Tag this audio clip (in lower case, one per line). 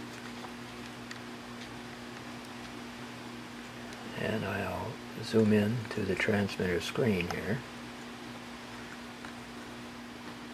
speech